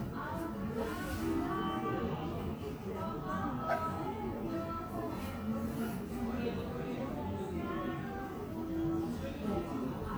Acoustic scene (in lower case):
cafe